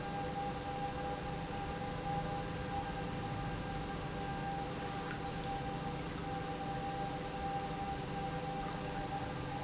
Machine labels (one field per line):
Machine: pump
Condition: normal